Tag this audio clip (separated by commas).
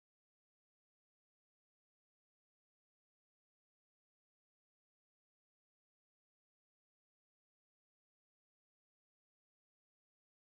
swimming